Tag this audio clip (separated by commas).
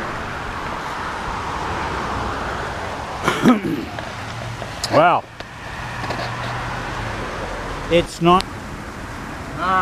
Speech, Field recording